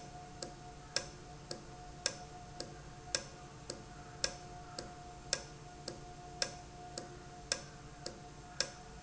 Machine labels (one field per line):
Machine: valve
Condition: normal